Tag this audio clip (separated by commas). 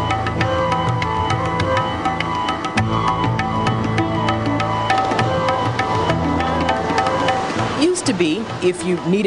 Music, Speech